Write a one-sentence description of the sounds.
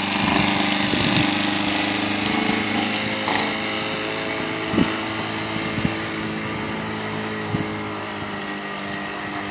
A motorboat engine starts and accelerates across water